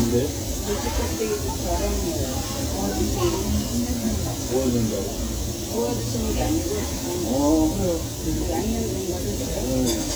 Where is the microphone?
in a restaurant